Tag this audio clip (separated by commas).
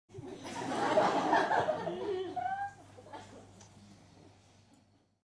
Human voice, Laughter, Human group actions, Crowd